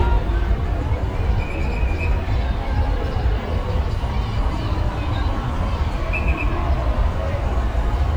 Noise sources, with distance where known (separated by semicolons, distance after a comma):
unidentified alert signal, near; unidentified human voice